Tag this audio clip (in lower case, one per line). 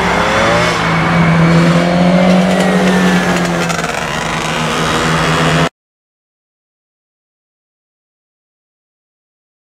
motor vehicle (road)
vehicle